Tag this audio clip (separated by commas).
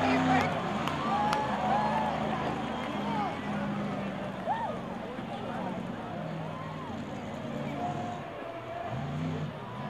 Speech